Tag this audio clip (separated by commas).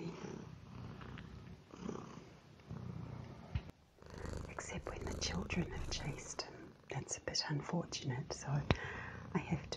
cat purring